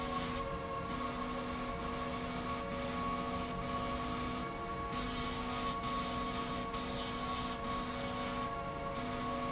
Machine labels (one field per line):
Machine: slide rail